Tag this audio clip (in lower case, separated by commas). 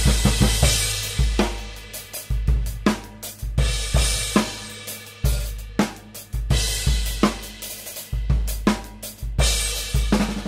playing bass drum, music, bass drum, hi-hat